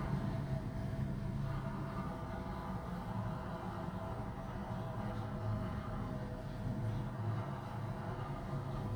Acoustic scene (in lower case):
elevator